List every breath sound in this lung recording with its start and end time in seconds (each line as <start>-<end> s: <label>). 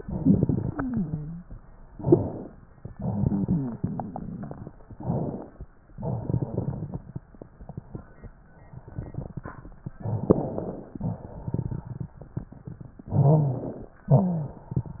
0.00-1.51 s: exhalation
0.63-1.51 s: wheeze
1.85-2.57 s: inhalation
2.82-4.68 s: exhalation
2.82-4.68 s: crackles
4.90-5.62 s: inhalation
5.88-7.29 s: exhalation
5.88-7.29 s: crackles
9.93-10.96 s: crackles
9.95-11.00 s: inhalation
10.98-13.05 s: exhalation
13.04-14.01 s: inhalation
13.14-13.88 s: crackles
14.06-14.59 s: wheeze
14.06-15.00 s: exhalation